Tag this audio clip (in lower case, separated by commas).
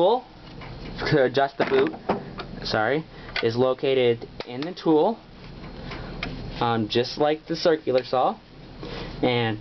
speech